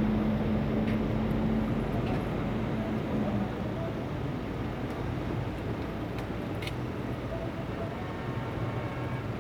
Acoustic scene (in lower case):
street